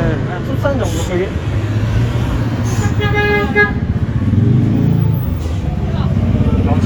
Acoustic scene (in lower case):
street